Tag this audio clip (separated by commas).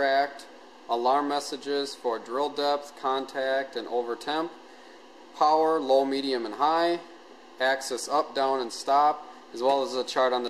Speech